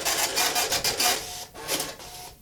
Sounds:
Mechanisms, Printer

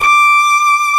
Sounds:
Musical instrument, Music, Bowed string instrument

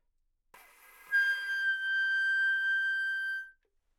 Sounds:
Wind instrument, Music, Musical instrument

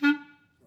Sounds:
Music, woodwind instrument, Musical instrument

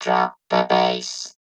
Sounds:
Speech, Human voice

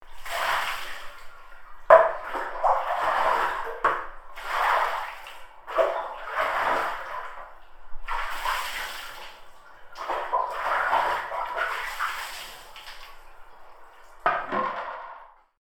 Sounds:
home sounds, Bathtub (filling or washing)

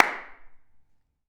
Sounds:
Hands, Clapping

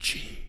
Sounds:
Human voice, Whispering

